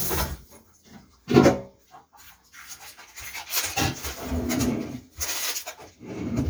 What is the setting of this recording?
kitchen